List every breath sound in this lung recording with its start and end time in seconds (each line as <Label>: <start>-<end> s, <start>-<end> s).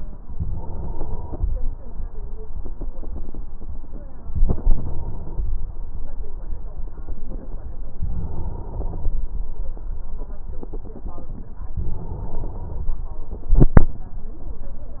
Inhalation: 0.25-1.56 s, 4.31-5.48 s, 8.04-9.21 s, 11.76-12.93 s
Exhalation: 13.33-14.13 s